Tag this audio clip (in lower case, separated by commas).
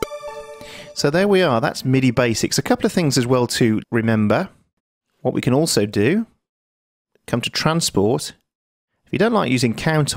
synthesizer, speech, music